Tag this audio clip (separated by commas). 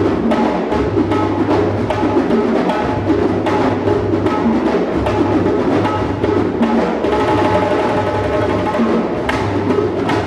playing djembe